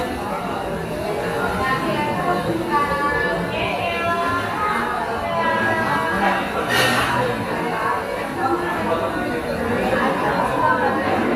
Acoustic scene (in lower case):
cafe